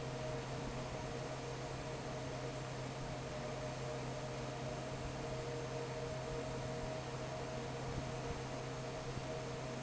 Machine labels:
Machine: fan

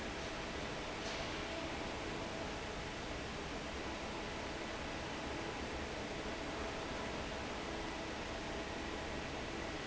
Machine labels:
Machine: fan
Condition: normal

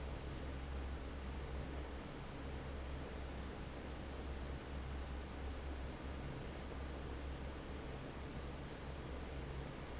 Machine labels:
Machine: fan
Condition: normal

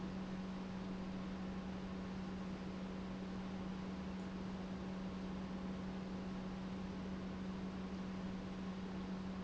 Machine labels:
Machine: pump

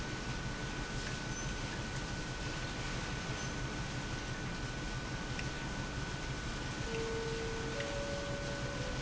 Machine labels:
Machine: pump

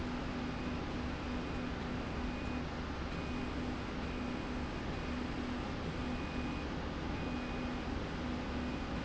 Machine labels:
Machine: slide rail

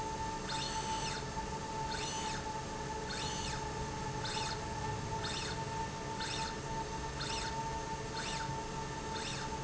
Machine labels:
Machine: slide rail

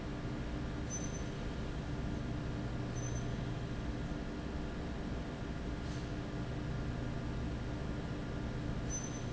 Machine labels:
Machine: fan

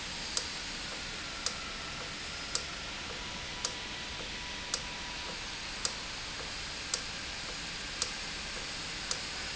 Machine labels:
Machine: valve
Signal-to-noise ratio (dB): -6 dB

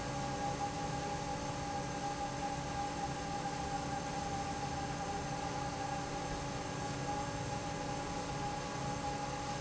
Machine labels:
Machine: fan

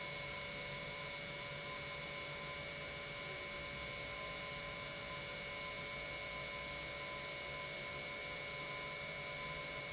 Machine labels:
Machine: pump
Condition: normal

